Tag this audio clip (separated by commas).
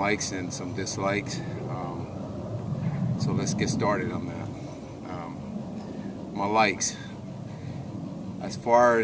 Speech